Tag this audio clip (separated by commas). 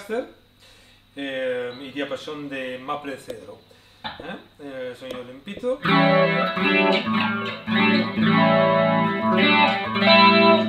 Musical instrument, Strum, Music, Guitar, Plucked string instrument, Speech